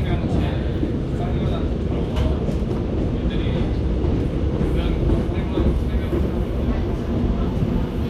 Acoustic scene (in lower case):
subway train